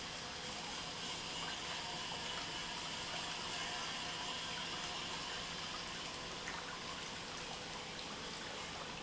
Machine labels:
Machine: pump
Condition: normal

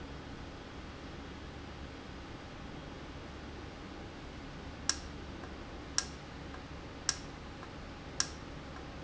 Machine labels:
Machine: valve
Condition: normal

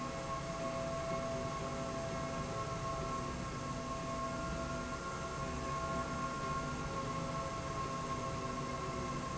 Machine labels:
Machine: slide rail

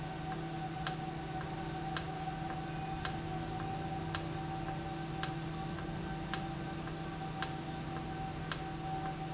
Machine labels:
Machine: valve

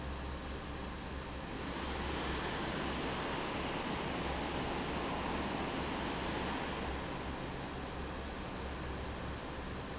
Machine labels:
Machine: fan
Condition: normal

